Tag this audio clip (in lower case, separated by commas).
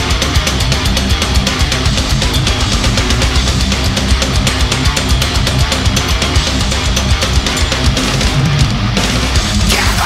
heavy metal, rock music, music